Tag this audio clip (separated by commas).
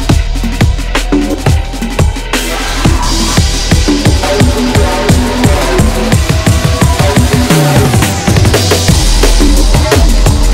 Music, Drum and bass